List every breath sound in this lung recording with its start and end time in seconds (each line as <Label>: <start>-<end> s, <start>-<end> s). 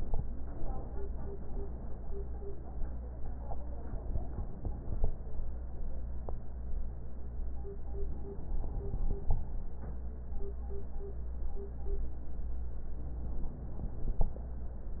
Inhalation: 8.01-9.51 s, 12.93-14.43 s